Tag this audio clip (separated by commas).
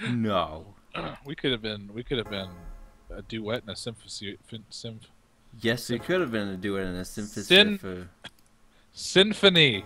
Speech